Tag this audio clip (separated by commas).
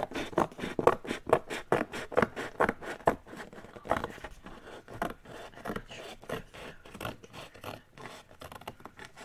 writing on blackboard with chalk